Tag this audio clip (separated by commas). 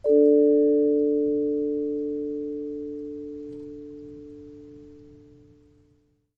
Musical instrument, Music, Percussion, Mallet percussion